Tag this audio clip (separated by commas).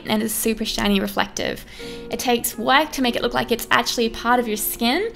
Speech, Music